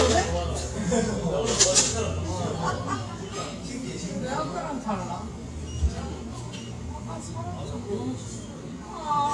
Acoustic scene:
cafe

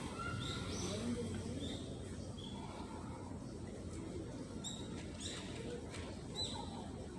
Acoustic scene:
residential area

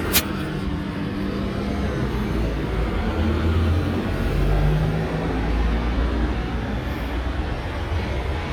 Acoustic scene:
street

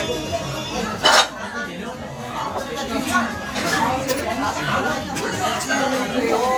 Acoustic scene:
restaurant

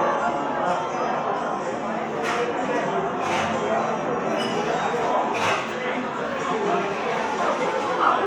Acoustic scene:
cafe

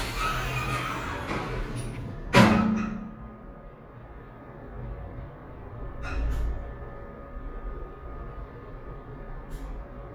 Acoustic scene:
elevator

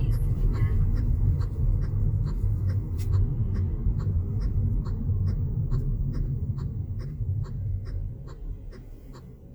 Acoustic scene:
car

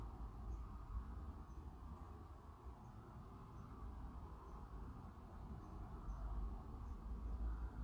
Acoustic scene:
residential area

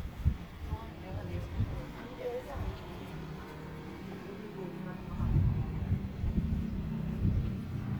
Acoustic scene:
residential area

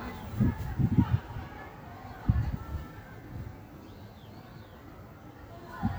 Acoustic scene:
park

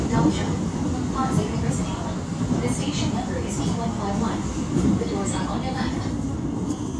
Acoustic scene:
subway train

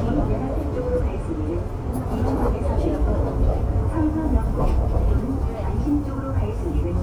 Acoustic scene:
subway train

